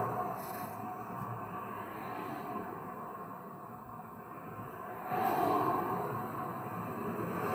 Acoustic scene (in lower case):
street